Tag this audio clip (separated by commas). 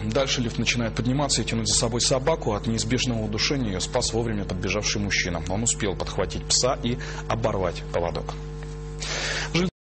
Speech